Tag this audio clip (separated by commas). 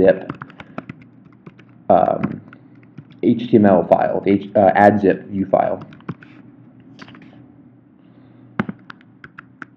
Speech